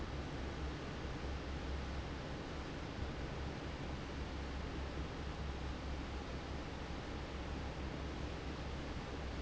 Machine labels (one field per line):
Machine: fan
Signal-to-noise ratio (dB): 0 dB